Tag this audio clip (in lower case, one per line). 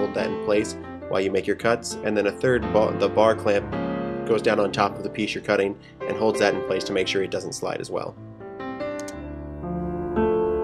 music
speech